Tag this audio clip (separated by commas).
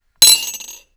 dishes, pots and pans, home sounds, silverware